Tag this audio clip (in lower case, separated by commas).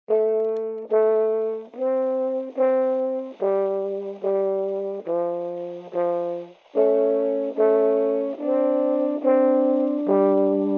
playing french horn